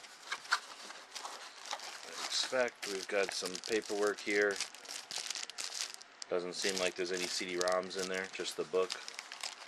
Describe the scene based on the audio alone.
Crinkling followed by man speaking